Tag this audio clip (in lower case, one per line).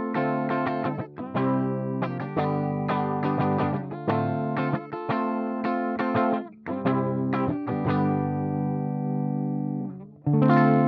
strum
guitar
music